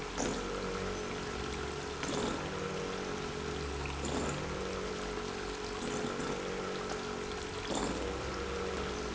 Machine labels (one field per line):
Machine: pump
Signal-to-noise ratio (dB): 0 dB